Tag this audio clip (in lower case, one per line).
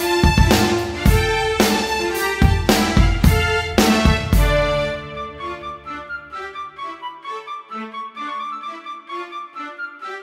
music